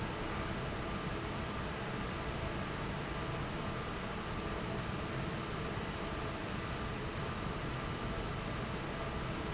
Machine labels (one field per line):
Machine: fan